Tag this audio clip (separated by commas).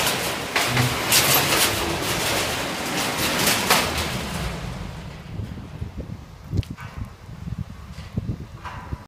Car